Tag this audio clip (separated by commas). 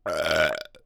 eructation